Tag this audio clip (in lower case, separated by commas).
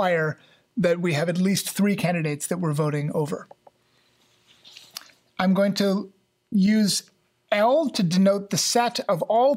speech